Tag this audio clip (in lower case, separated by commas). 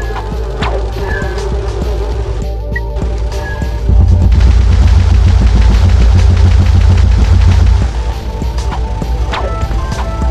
music